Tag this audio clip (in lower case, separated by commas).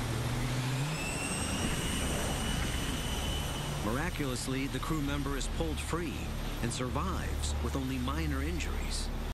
vehicle, speech, jet engine